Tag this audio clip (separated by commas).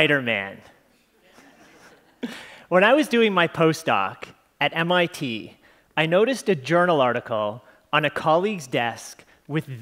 Speech